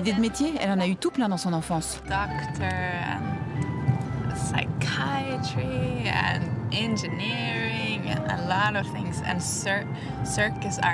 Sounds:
music
speech

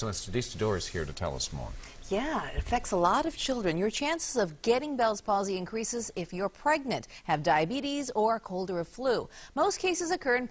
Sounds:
speech

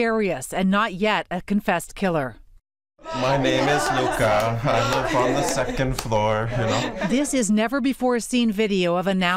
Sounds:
speech

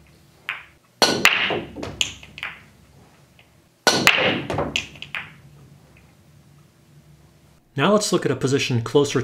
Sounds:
striking pool

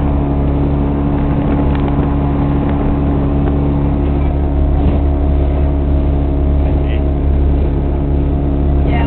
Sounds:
speech

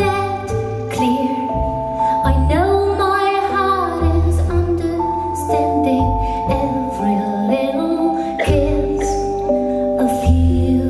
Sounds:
music

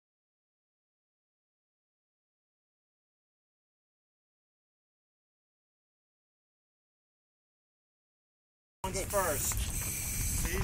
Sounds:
speech

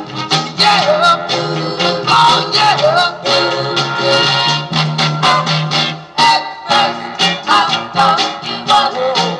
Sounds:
music
soul music

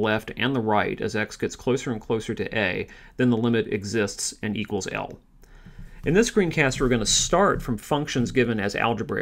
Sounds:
speech

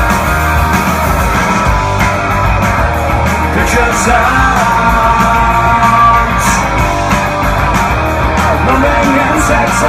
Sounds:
music

